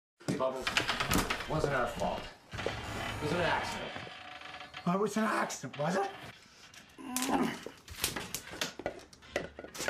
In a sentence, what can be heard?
Men speaking with tapping sounds and creak of a door opening in the background